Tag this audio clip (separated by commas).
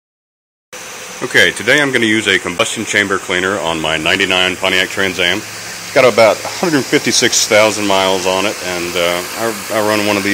Engine